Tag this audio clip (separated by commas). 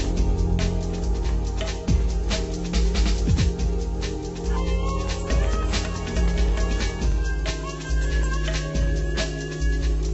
Music